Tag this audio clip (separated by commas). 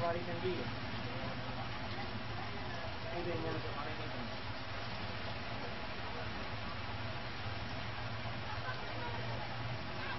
Rain on surface, Speech